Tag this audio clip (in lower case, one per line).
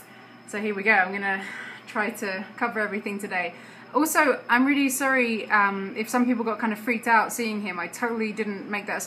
speech